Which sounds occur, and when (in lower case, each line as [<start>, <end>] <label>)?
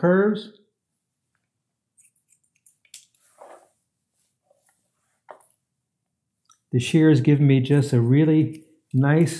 [0.01, 0.61] man speaking
[0.01, 9.35] background noise
[6.66, 8.63] man speaking
[8.89, 9.35] man speaking